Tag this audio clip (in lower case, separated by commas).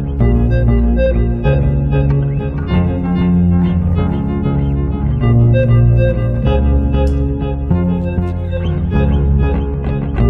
music, guitar, double bass, musical instrument, plucked string instrument